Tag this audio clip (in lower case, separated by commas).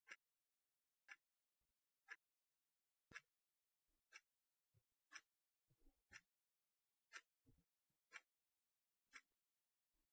clock, mechanisms